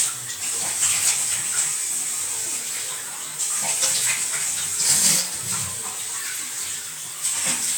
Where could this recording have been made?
in a restroom